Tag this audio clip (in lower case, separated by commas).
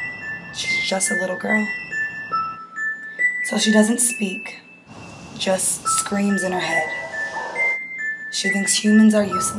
sad music, music, speech